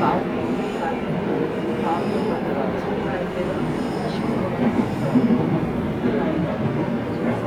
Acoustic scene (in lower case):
subway train